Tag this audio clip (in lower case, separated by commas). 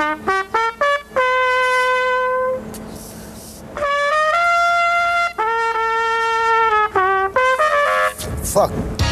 woodwind instrument